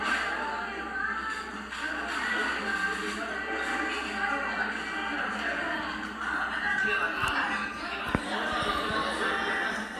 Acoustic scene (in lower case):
crowded indoor space